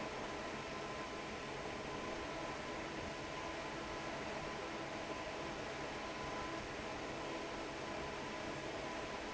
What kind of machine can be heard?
fan